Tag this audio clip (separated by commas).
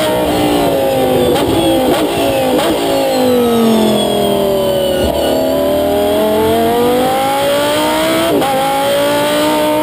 Vehicle, Car, Heavy engine (low frequency), Engine, Accelerating